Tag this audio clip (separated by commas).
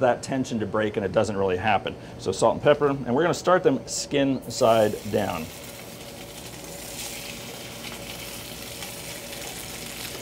Speech